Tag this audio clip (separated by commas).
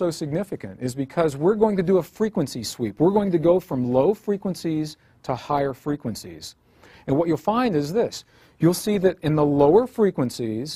Speech